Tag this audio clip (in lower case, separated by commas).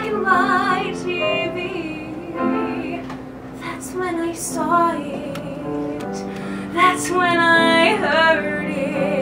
music, female singing